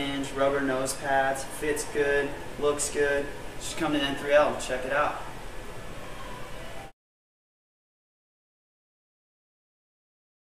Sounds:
Speech

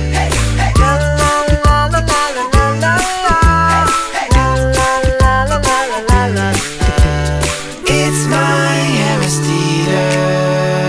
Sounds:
Music

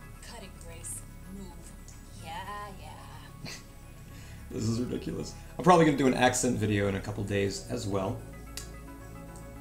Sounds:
Speech, Music

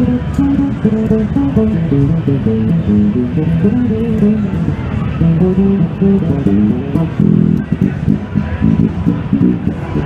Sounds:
Guitar, Plucked string instrument, Music, Musical instrument, Bass guitar

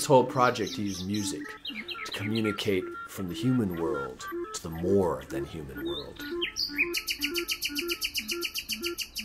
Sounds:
Speech, Music, Bird

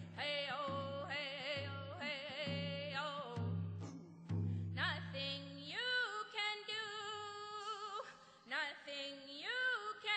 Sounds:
Music, Female singing

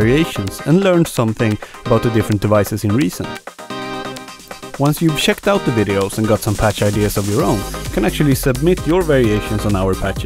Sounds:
Speech, Music

